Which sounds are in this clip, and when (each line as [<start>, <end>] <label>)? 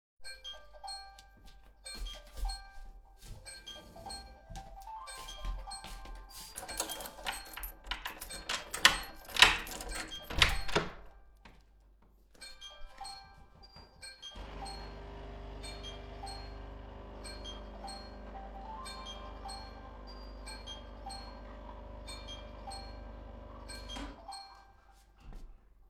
[0.03, 11.09] phone ringing
[6.45, 10.94] door
[12.33, 24.54] phone ringing
[13.96, 25.90] coffee machine